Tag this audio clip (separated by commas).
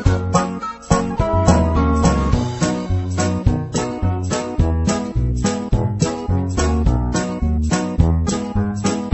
Music